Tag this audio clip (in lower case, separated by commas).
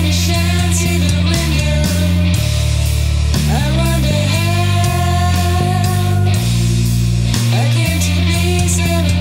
music, rock music, progressive rock